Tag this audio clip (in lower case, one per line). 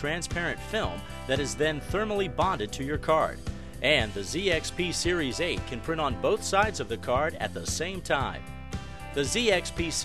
speech
music